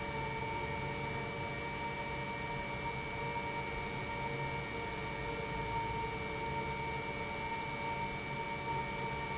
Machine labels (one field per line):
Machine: pump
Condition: normal